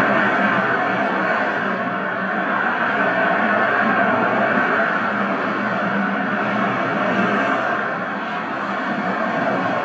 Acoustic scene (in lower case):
street